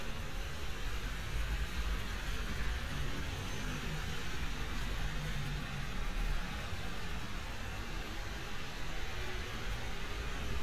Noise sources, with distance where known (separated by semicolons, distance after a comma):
medium-sounding engine, far